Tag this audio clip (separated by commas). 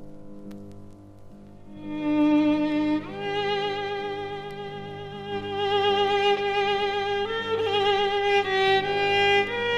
Violin, Musical instrument, Music